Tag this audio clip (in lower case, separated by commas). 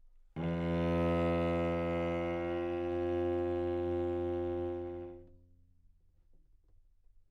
music, bowed string instrument, musical instrument